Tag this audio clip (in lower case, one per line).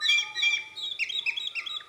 wild animals
animal
bird